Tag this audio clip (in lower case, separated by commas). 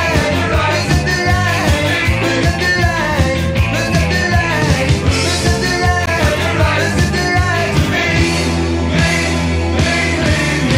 rock music, singing, music